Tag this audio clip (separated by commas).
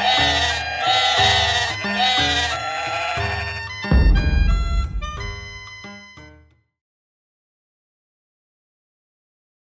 Bleat, Music, Sheep